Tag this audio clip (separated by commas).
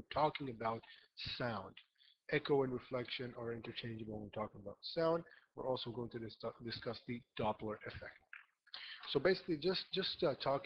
Speech